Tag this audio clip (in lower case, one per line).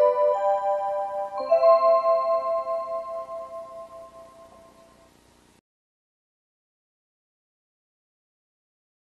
music